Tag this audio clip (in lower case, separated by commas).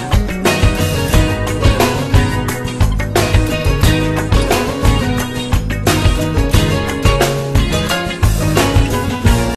music